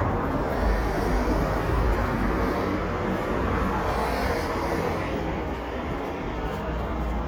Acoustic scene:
street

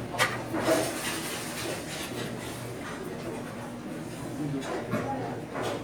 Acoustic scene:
restaurant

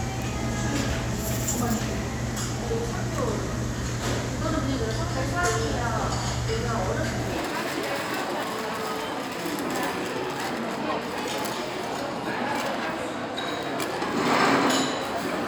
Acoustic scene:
restaurant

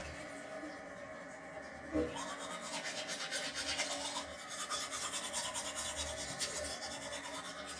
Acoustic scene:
restroom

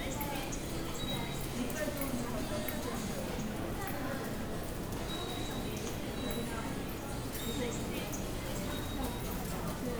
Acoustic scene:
subway station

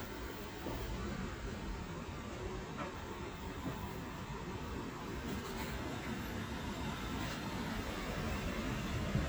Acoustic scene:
residential area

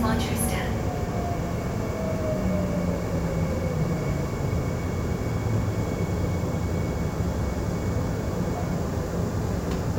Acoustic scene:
subway train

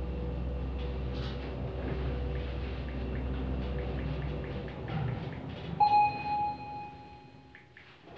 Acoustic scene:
elevator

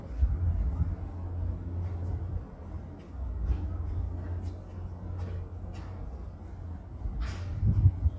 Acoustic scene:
residential area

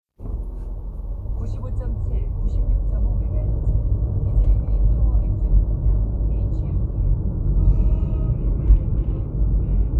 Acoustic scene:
car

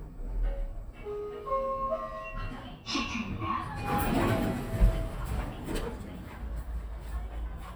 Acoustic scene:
elevator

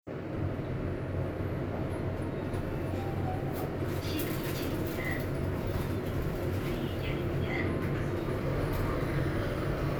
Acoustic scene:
elevator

